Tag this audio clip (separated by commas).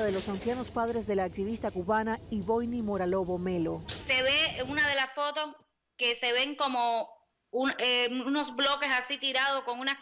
police radio chatter